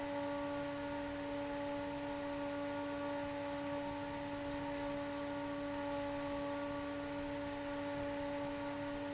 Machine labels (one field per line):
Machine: fan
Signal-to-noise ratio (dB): 6 dB